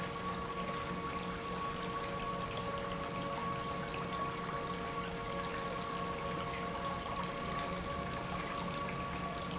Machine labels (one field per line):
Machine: pump